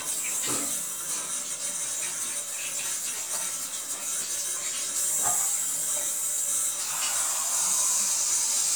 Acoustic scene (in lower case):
restroom